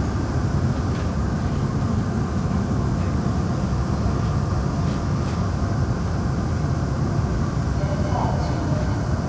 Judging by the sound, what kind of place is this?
subway train